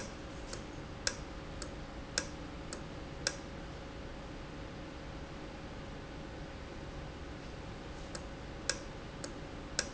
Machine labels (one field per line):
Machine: valve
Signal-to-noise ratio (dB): 0 dB